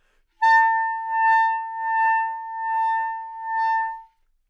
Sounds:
music
musical instrument
woodwind instrument

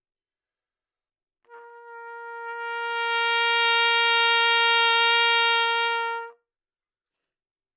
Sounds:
brass instrument
musical instrument
trumpet
music

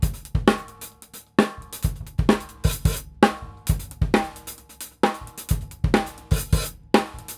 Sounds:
percussion
musical instrument
drum kit
music

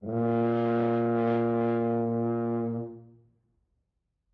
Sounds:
brass instrument
musical instrument
music

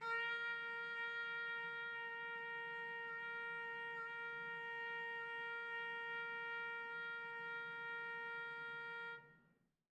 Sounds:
trumpet
brass instrument
music
musical instrument

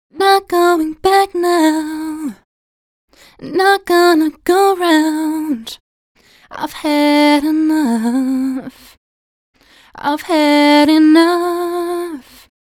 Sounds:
human voice
female singing
singing

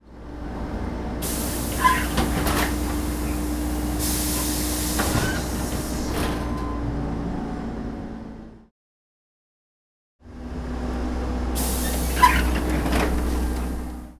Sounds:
vehicle

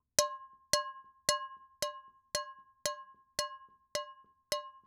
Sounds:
dishes, pots and pans
domestic sounds

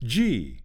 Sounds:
human voice
speech
man speaking

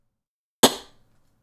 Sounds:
tap

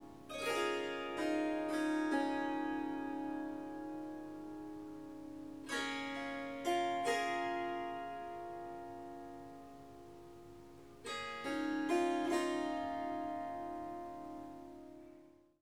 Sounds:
harp
musical instrument
music

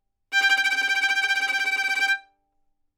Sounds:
music
musical instrument
bowed string instrument

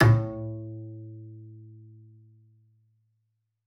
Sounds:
bowed string instrument
music
musical instrument

